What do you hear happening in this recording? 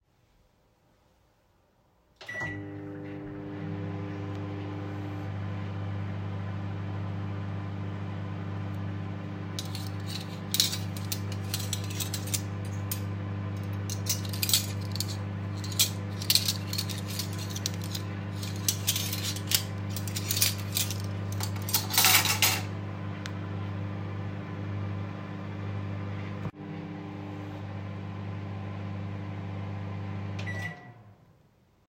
I turned on the microwave, then started shuffling the cutlery and after putting it down I turned the microwave off.